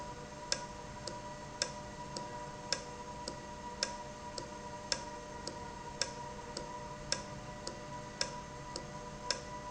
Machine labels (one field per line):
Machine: valve